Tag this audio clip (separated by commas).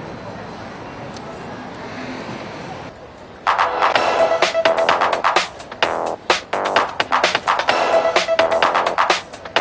Music